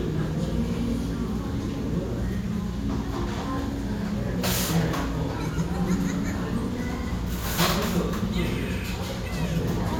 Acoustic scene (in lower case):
restaurant